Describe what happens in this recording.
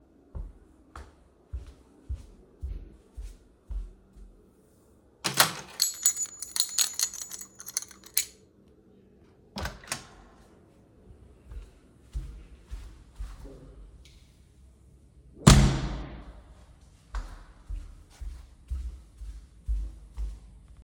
I walked up to the living room, took my keys, opened the door, walked out in the hallway and closed the door and continiuned walking